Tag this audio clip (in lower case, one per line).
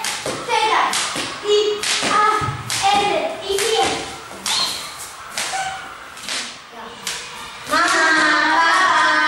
rope skipping